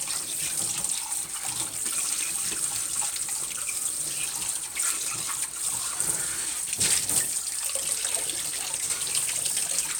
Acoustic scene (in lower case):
kitchen